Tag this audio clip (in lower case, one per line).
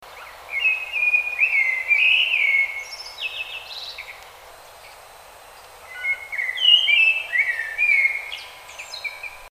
animal
wild animals
bird